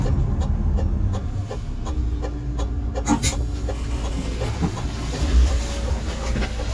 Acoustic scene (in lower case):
bus